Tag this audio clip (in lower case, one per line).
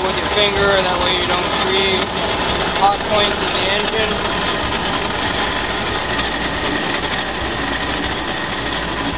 engine
speech